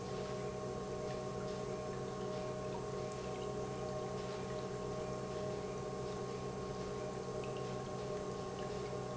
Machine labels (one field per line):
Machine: pump